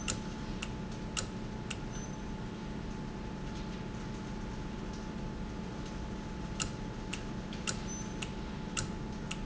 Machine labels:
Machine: valve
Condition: normal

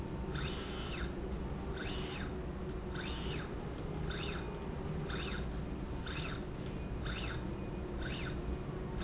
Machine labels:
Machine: slide rail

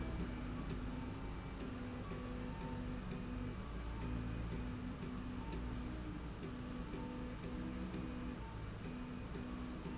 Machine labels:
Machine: slide rail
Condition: normal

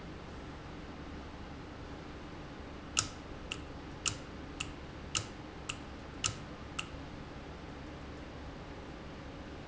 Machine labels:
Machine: valve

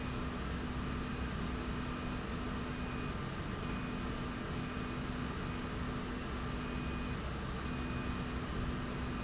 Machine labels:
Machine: slide rail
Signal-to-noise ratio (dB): -6 dB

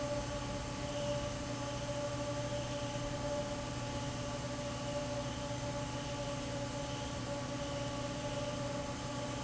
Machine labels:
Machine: fan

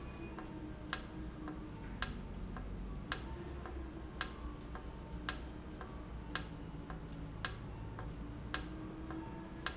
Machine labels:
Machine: valve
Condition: normal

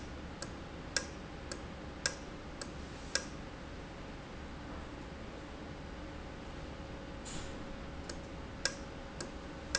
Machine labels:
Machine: valve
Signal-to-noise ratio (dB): 0 dB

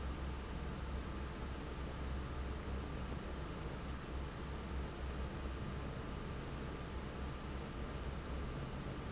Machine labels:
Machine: fan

